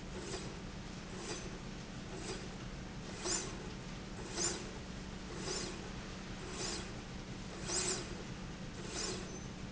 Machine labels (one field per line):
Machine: slide rail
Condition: normal